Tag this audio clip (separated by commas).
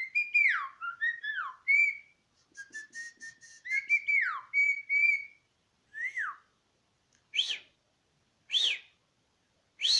mynah bird singing